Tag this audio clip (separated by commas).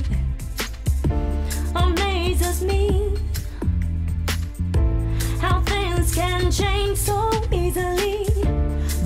Music